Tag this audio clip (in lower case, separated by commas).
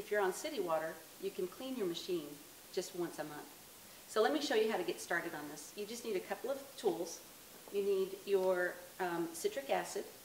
speech